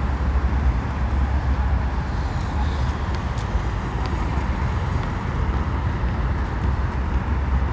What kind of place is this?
street